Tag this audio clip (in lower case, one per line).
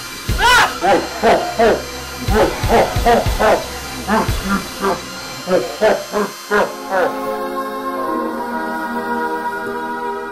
music
inside a small room